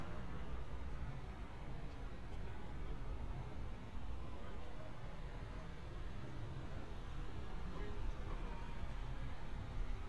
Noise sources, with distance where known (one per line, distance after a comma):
engine of unclear size, far